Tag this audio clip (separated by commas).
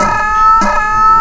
Alarm